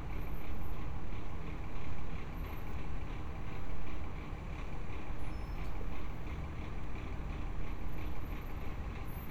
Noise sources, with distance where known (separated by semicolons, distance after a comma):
background noise